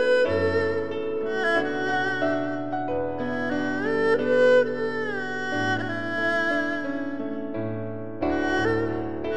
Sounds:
playing erhu

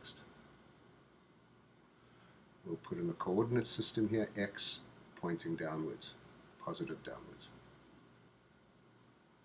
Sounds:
Speech

